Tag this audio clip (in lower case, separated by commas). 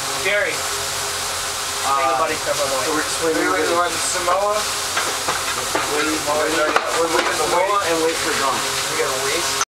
speech